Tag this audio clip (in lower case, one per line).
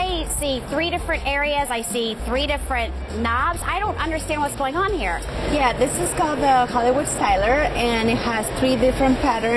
music
speech